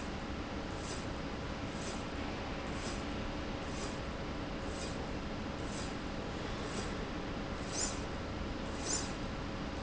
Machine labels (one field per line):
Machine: slide rail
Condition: normal